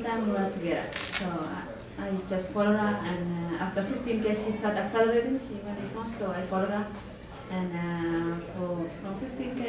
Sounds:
female speech
speech

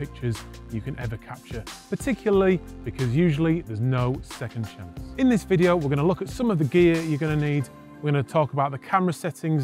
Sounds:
bird wings flapping

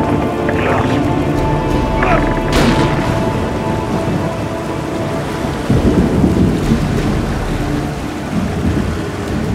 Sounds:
music

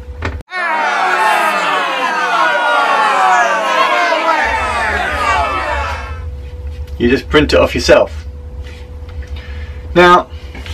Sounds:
crowd

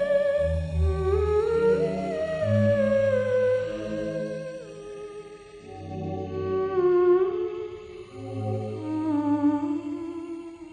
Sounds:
playing theremin

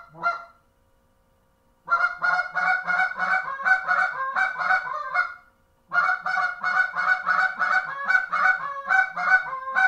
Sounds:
goose
animal

